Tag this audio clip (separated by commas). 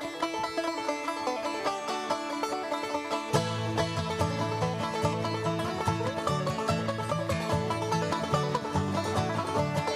playing banjo